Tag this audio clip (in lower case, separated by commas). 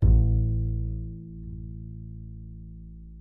bowed string instrument, musical instrument, music